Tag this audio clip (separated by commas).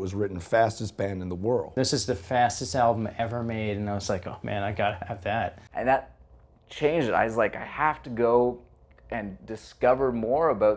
Speech